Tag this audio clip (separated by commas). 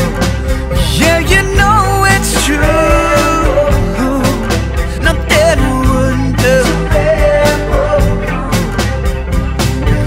Music